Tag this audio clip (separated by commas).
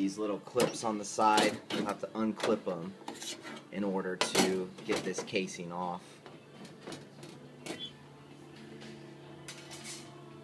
Speech